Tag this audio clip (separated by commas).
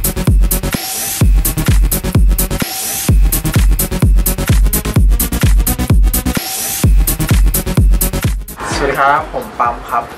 Music, Speech